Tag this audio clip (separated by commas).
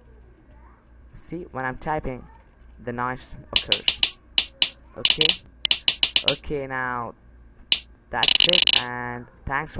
Speech